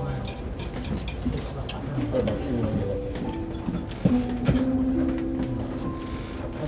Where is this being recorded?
in a restaurant